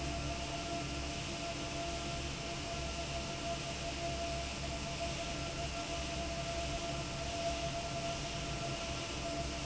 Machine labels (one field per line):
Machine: fan